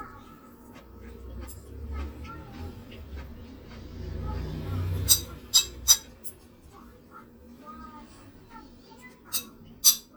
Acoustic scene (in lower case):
kitchen